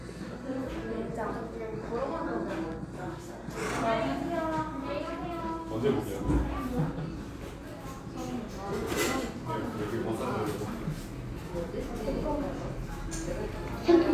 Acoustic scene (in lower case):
cafe